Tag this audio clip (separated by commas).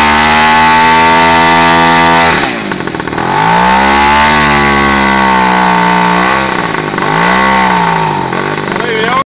Engine, vroom, Speech